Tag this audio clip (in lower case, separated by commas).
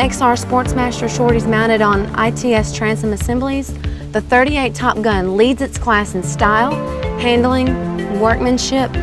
speech, music